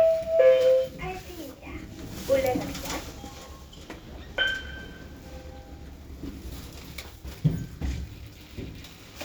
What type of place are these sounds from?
elevator